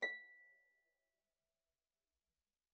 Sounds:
Music, Harp, Musical instrument

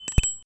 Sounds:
Bell, Bicycle bell, Alarm, Bicycle, Vehicle

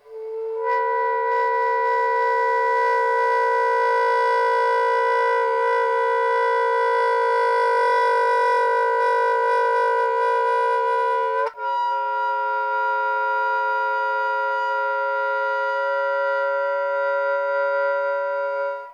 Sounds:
Music, woodwind instrument, Musical instrument

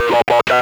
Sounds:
Human voice, Speech

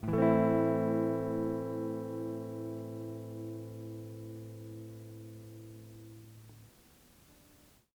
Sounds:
Guitar, Musical instrument, Plucked string instrument, Music

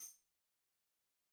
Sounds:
Tambourine, Music, Musical instrument, Percussion

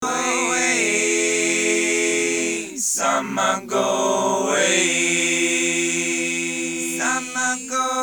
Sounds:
Human voice

